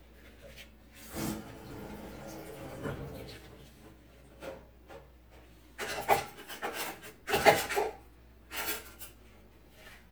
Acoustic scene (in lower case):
kitchen